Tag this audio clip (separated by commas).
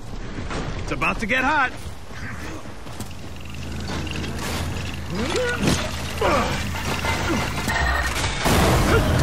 Speech